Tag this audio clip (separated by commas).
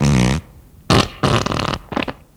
Fart